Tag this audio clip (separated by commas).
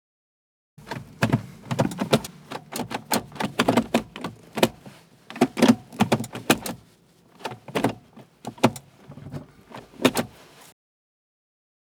Mechanisms